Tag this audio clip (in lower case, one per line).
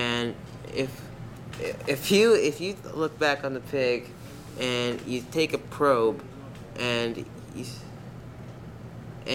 speech